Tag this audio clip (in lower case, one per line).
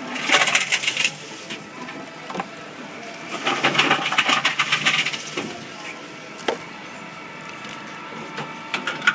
plastic bottle crushing